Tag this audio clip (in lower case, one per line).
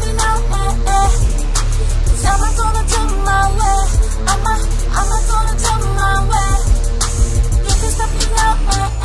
music